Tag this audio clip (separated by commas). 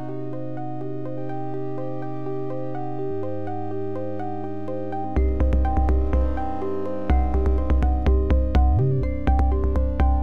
Music, Sound effect